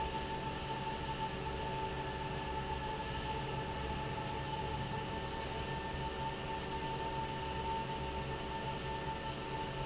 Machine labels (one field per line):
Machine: fan